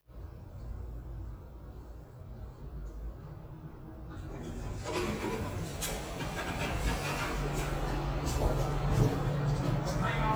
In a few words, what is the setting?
elevator